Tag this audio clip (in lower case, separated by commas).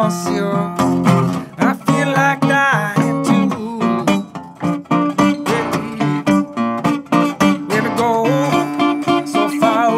music, plucked string instrument